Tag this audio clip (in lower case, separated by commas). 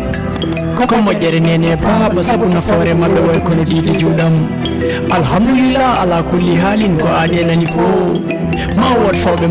music